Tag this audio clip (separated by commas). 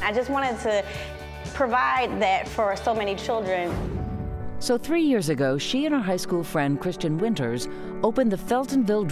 Music, Speech